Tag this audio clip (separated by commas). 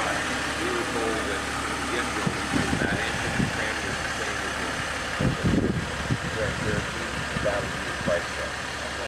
Speech